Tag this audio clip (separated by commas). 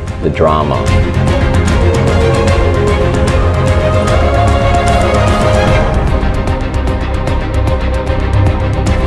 Speech, Bowed string instrument, Music